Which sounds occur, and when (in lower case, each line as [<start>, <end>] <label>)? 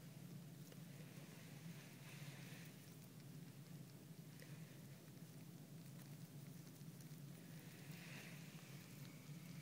[0.00, 9.61] mechanisms
[0.80, 2.81] surface contact
[4.32, 5.14] surface contact
[7.39, 9.61] surface contact